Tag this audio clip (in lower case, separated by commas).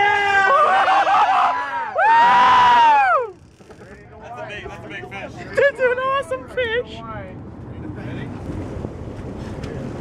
ocean